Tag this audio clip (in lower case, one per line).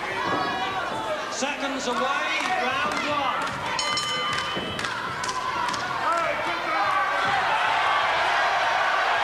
speech